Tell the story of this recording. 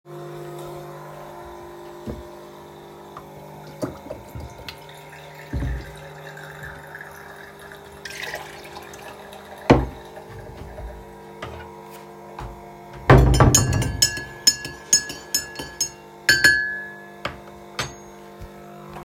I carried the device in the kitchen during the recording. I started the coffee machine and then turned on running water. Cutlery and dish sounds were also audible in the scene. I additionally opened a cupboard, which is listed as a non-target sound.